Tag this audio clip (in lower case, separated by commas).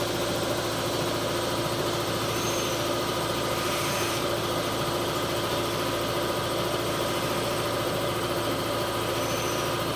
jet engine